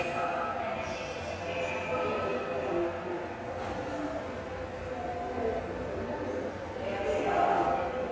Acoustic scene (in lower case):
subway station